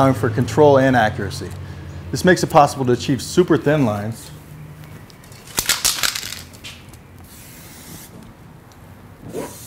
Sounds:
Speech, Spray

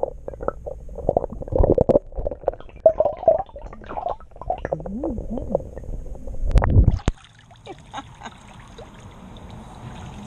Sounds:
underwater bubbling

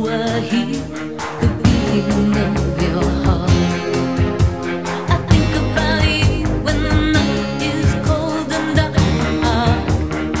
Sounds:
Pop music

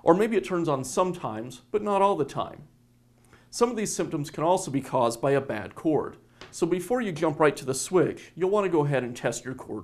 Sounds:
Speech

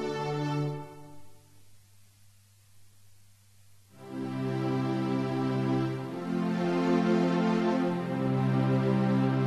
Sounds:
Music

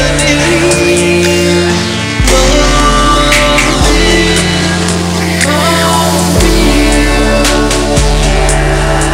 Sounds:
Music

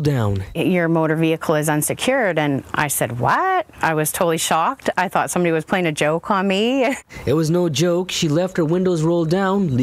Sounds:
Speech

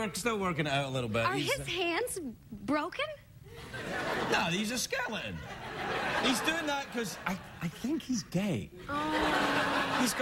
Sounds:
Speech

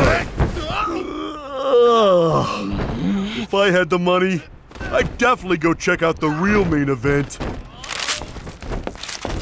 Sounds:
Speech

